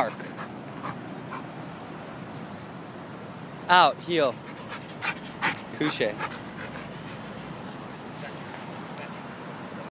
A dog pants as a man is talking